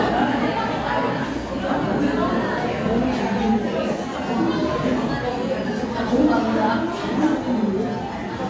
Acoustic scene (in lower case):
crowded indoor space